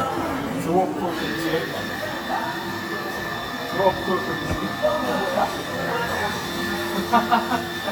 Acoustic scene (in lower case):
cafe